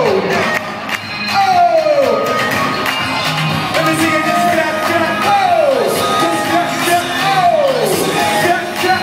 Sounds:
Gospel music, Music

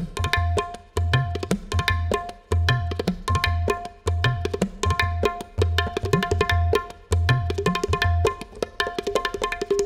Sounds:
playing tabla

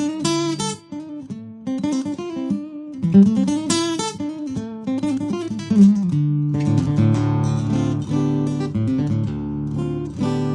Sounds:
Guitar, Plucked string instrument, Acoustic guitar, Electric guitar, Musical instrument, Strum, Music

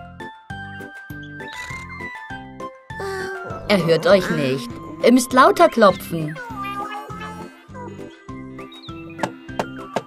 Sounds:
ice cream van

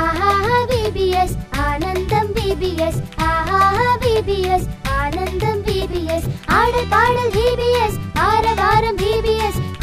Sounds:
Music

